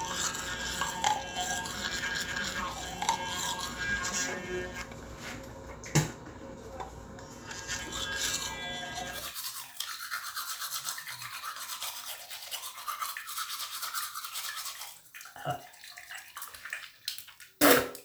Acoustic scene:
restroom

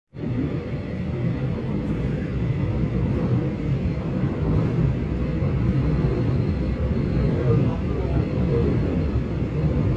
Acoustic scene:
subway train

